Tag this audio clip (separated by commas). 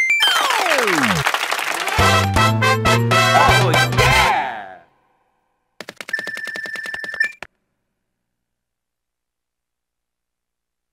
Music